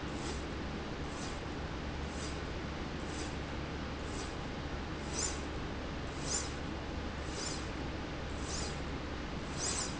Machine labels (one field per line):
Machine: slide rail